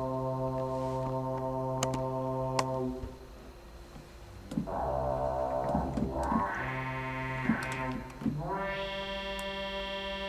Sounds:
Music, Sound effect

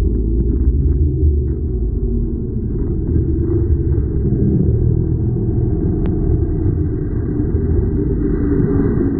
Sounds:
Music

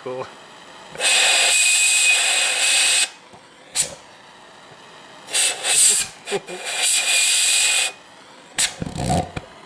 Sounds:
Speech

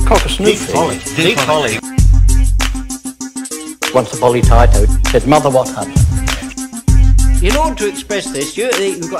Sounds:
Hip hop music, Music

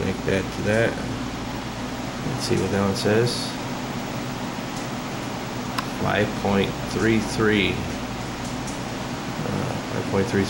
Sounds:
Speech, inside a small room

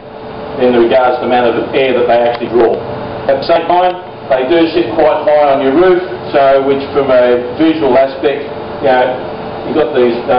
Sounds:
Speech

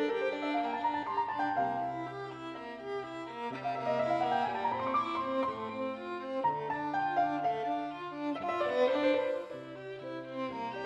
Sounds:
Musical instrument, fiddle, Music

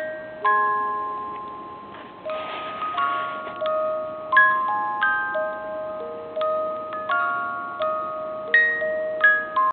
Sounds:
Music

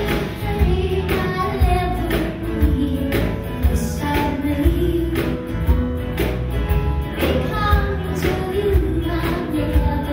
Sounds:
Music

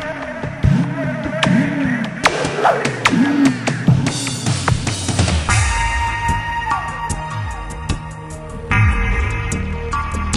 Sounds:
Music

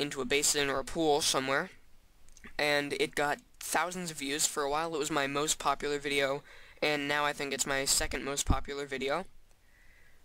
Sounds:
Speech

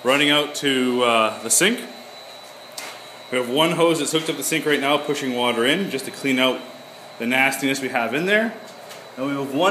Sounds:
Speech

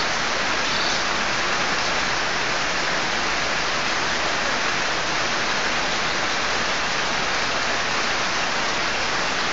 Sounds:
Animal

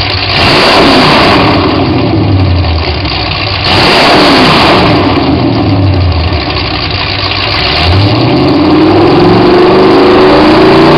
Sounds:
Idling, Engine, Accelerating

